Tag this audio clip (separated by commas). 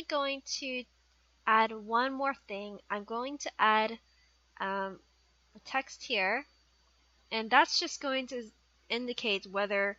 Speech